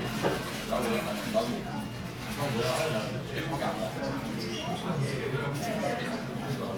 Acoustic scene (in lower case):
crowded indoor space